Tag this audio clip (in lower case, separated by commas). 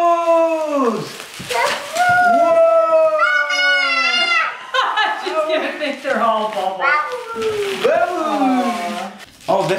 speech, inside a small room